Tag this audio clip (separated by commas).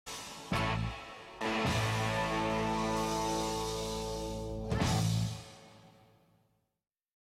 Music, Television